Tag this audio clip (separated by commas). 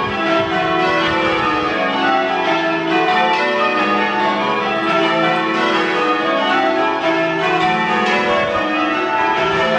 church bell ringing